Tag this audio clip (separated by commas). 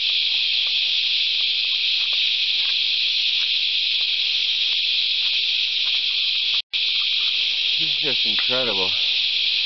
outside, rural or natural, Speech